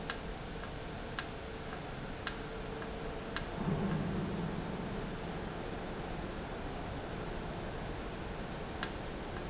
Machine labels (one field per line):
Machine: valve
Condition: normal